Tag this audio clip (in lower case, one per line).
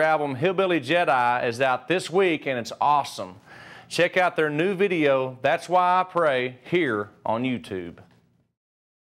speech